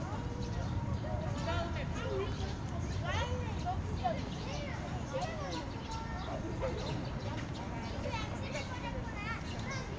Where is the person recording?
in a park